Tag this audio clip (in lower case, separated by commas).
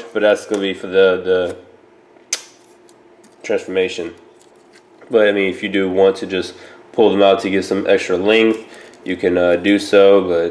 speech, inside a small room